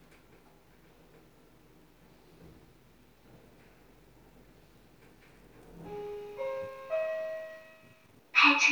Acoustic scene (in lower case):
elevator